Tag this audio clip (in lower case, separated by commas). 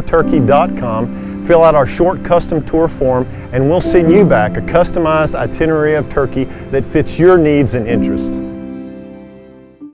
music, speech